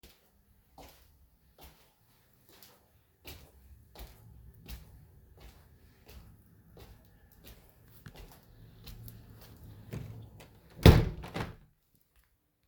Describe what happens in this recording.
I went across the room to close the window. I closed the window